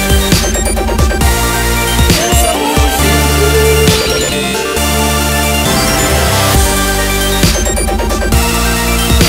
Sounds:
Music

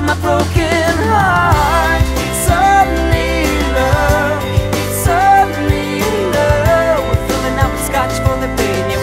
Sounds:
Blues, Tender music, Music

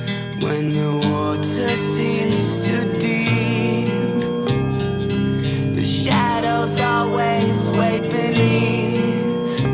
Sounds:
Music

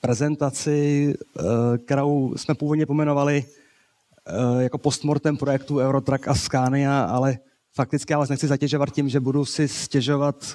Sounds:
Speech

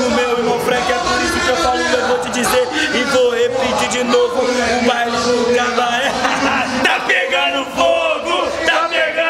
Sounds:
Speech

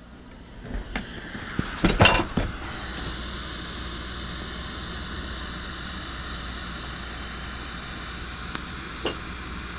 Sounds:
Noise

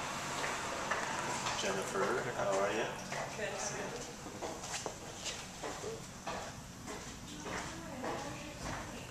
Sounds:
Speech

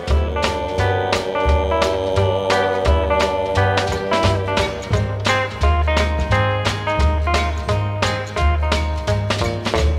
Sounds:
Music, Swing music

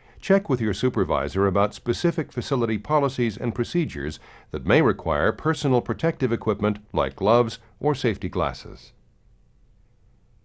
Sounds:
Speech

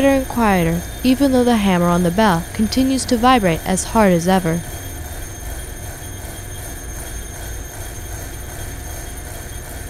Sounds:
Speech

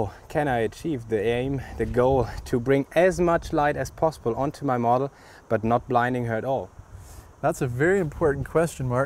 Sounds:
Speech

